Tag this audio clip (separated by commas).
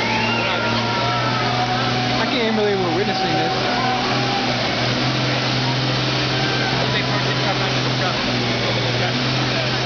Truck, Vehicle, Speech